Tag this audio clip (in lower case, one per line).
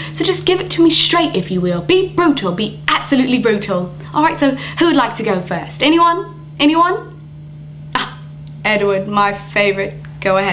narration
speech